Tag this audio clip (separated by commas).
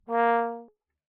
Music, Musical instrument, Brass instrument